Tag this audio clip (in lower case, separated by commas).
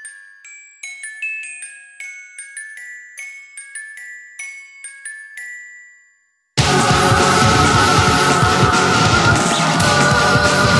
glockenspiel, music